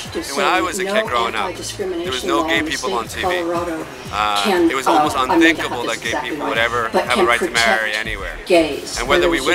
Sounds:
Music, Speech, Male speech, monologue, woman speaking

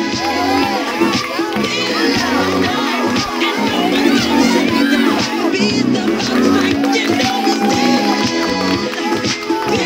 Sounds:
Music, Speech

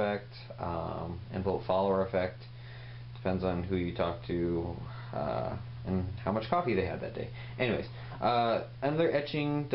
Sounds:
Speech

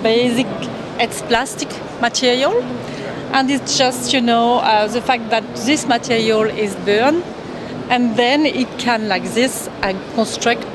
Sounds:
Speech

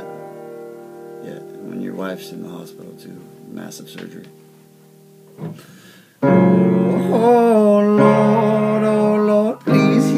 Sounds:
Keyboard (musical), Musical instrument, Piano, Music

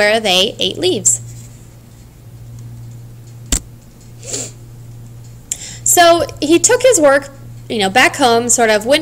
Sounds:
Speech

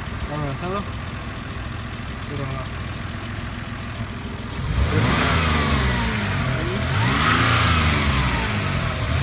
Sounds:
Engine, Car, Vehicle, Medium engine (mid frequency), Speech

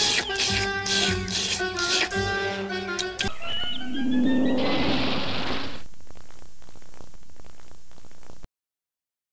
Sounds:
Music

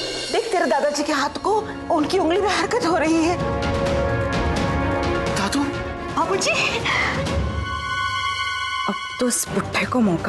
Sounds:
Music, Scary music, Speech

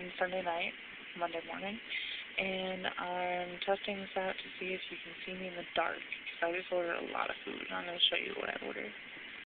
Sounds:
Speech

